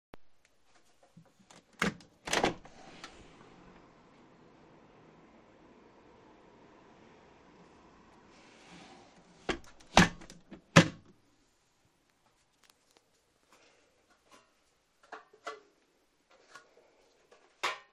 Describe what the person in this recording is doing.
I was standing on top of my metal folding step ladder and opened the roof window in my bedroom. I kept it open for a little while, then I closed it again and stepped down the 3 steps of the ladder.